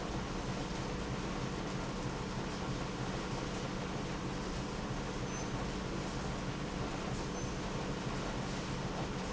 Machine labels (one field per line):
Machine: pump